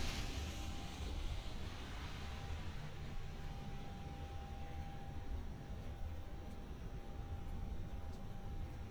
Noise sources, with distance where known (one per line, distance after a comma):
background noise